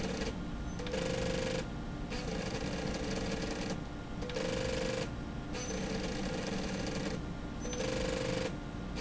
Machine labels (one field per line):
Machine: slide rail